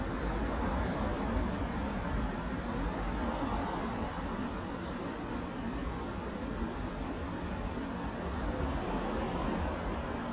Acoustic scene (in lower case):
residential area